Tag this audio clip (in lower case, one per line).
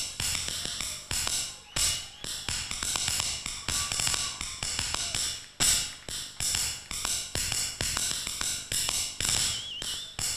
music
tap